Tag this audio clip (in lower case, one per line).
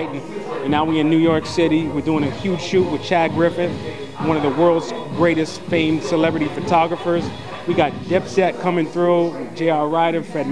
speech
music